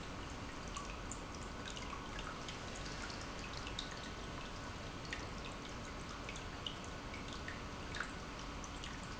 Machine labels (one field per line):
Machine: pump